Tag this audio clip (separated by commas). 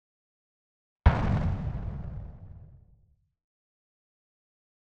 Explosion